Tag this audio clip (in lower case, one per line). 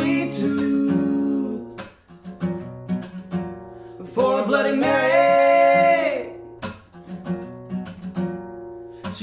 music